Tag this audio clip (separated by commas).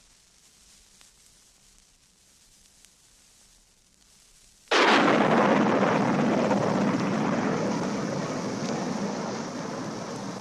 Sound effect